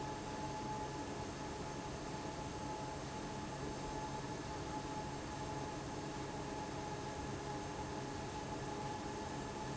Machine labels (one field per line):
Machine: fan